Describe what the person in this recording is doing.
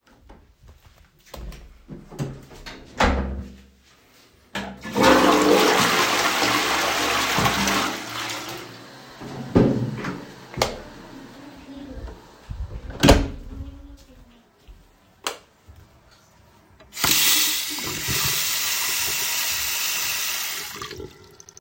I flushed the toilet and turned on the sink water for a moment before turning it off again.